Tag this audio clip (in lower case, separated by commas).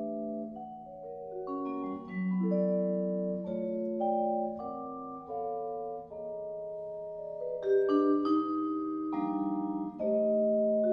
playing vibraphone